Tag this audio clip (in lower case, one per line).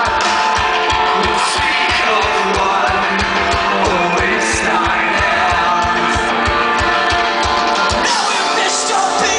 music